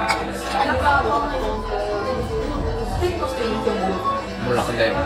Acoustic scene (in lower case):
cafe